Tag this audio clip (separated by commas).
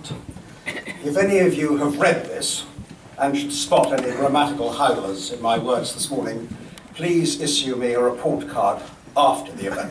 man speaking, Speech, Narration